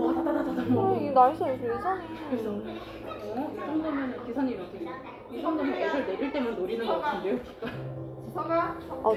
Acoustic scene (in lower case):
crowded indoor space